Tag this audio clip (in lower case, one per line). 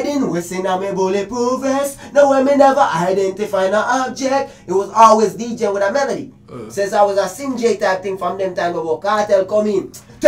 speech